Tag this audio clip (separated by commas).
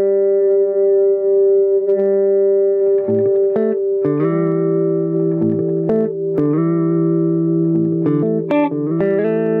Music, Electronic tuner, inside a small room, Effects unit, Guitar